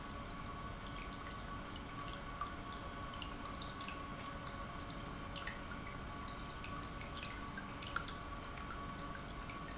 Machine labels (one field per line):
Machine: pump